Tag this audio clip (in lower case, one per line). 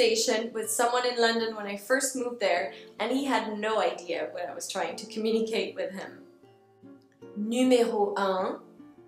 speech
music